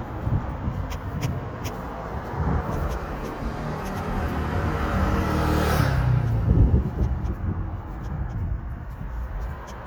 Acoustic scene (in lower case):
street